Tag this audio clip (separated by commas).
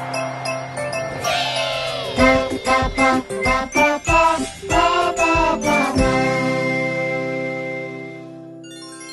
Music, tinkle, Music for children